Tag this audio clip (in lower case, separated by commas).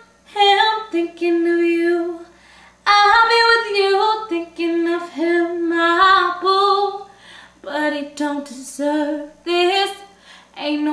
female singing